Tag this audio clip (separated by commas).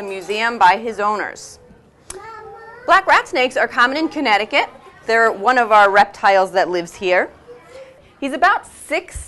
inside a small room, Speech